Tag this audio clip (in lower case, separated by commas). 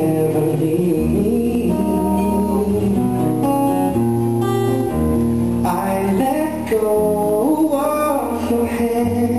music, male singing